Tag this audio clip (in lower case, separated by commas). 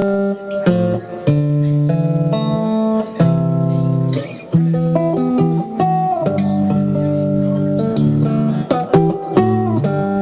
electric guitar, music, plucked string instrument, musical instrument, guitar, strum, speech